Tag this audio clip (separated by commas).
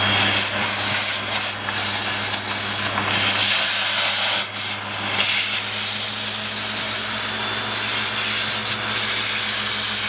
sliding door